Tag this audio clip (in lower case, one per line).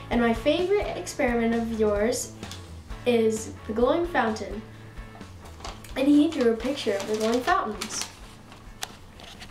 child speech
music
speech